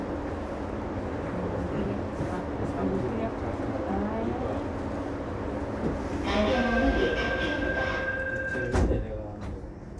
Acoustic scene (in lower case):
subway train